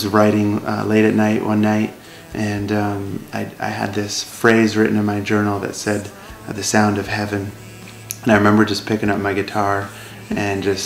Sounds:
music, speech

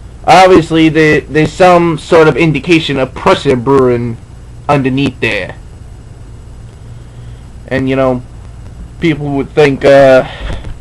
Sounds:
speech

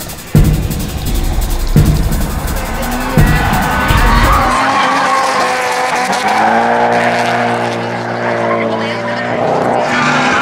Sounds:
scratch, rattle, music

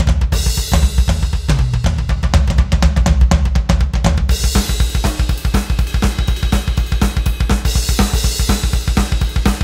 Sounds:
music

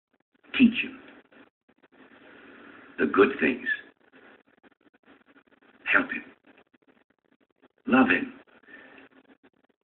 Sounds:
speech

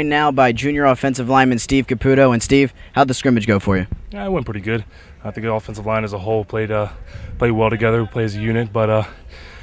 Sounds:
speech

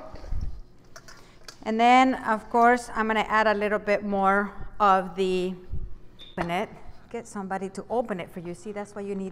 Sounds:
inside a small room, speech

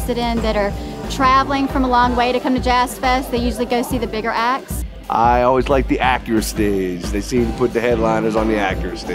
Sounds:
blues, jazz, music, rhythm and blues, speech

